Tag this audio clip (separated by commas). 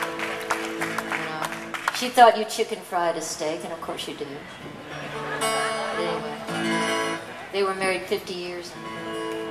Speech, Music, Musical instrument